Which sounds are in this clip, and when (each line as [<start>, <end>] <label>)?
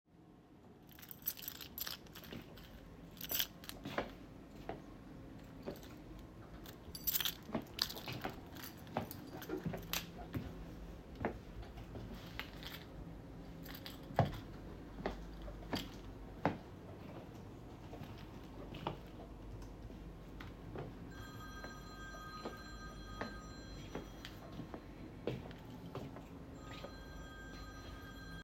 [0.84, 4.11] keys
[3.60, 6.77] footsteps
[6.93, 10.51] keys
[7.90, 12.67] footsteps
[14.08, 14.38] footsteps
[14.93, 17.44] footsteps
[18.57, 19.23] footsteps
[20.64, 28.44] footsteps
[20.90, 24.66] phone ringing
[26.31, 28.44] phone ringing